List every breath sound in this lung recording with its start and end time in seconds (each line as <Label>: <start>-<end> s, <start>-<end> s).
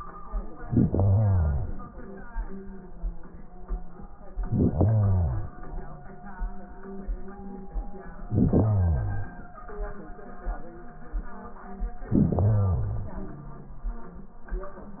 Inhalation: 0.55-2.04 s, 4.43-5.62 s, 8.25-9.44 s, 12.10-13.21 s
Wheeze: 13.13-13.90 s